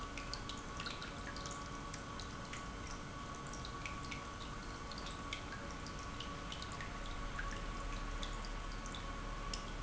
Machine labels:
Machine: pump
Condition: normal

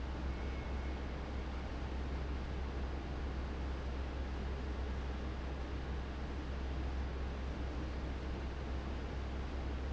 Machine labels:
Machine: fan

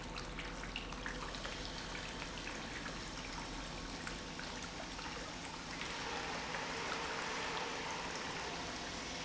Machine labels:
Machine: pump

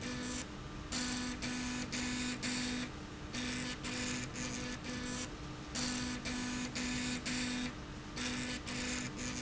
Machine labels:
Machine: slide rail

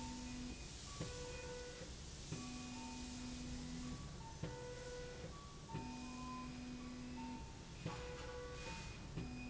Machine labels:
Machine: slide rail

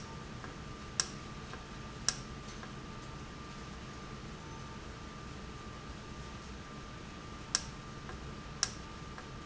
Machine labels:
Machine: valve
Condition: normal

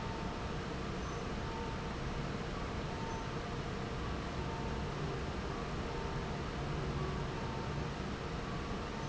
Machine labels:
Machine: fan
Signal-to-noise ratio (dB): -6 dB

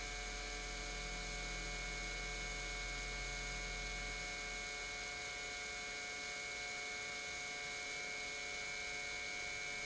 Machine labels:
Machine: pump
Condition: normal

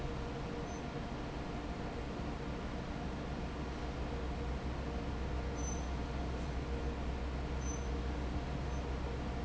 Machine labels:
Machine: fan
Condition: normal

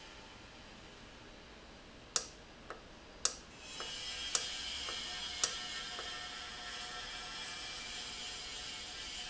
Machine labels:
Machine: valve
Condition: normal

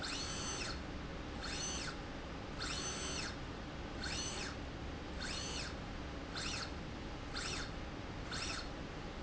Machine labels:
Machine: slide rail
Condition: normal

